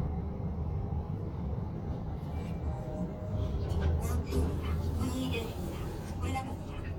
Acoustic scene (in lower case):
elevator